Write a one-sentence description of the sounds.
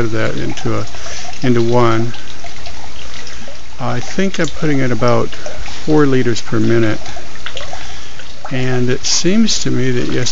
A male speaking and water dripping